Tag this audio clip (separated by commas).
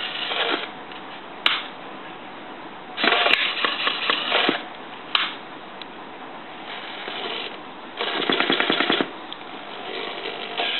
Tools